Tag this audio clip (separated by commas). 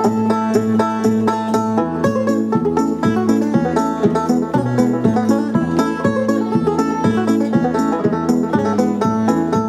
Music, Banjo, Musical instrument, Bowed string instrument